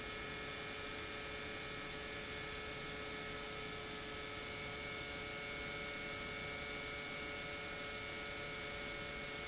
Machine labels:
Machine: pump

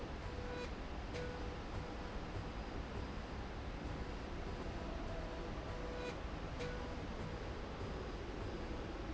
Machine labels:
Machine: slide rail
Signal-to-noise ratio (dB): 0 dB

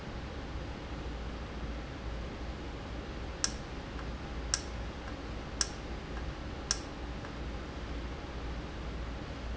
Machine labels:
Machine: valve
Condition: normal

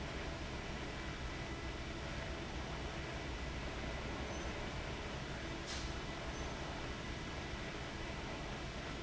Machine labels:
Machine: fan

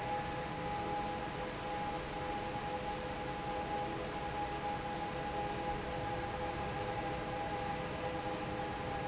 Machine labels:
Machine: fan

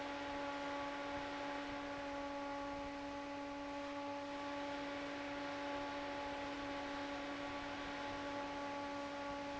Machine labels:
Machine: fan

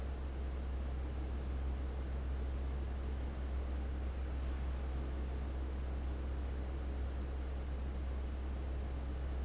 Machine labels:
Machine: fan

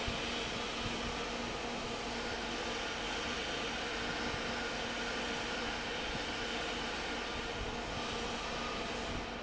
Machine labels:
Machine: fan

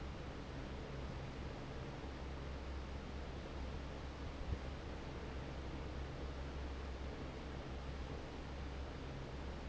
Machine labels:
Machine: fan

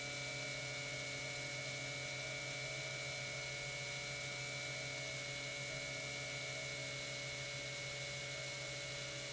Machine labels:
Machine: pump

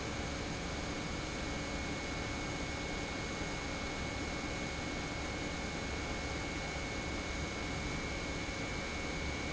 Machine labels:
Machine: pump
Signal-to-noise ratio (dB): -6 dB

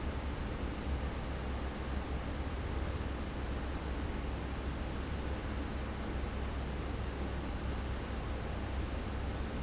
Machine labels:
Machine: fan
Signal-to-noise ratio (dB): -6 dB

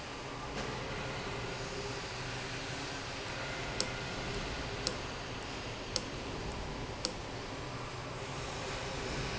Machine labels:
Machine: valve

